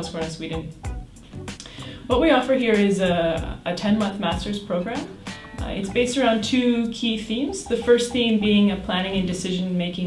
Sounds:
Speech, Music

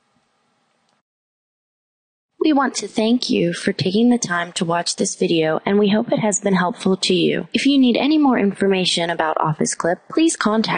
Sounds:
Speech

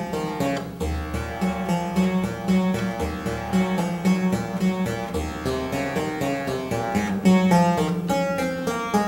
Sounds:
Music

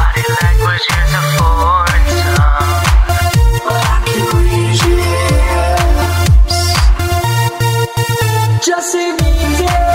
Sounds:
Rock music, Music, Punk rock, Electronic music

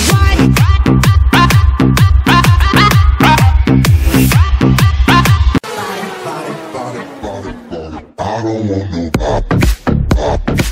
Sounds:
people shuffling

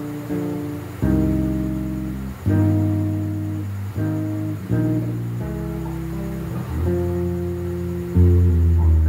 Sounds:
Electric guitar, Strum, Guitar, Music, Plucked string instrument, Musical instrument

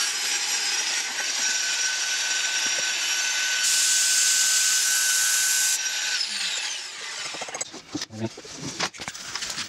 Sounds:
Tools

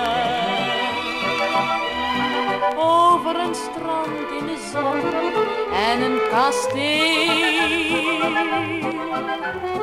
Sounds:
Music, Orchestra

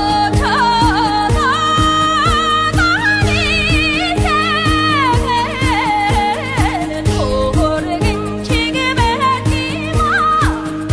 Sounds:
Music, Folk music

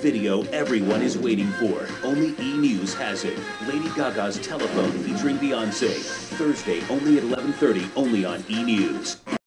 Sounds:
Speech, Music

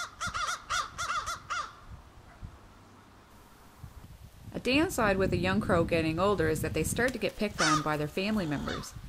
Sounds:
Speech, outside, rural or natural, Bird, Caw, Crow

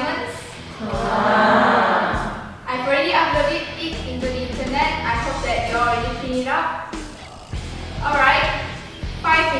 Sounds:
Music, Speech

